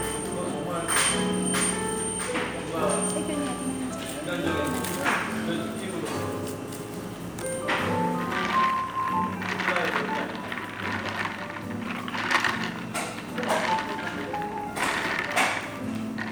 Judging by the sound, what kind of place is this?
cafe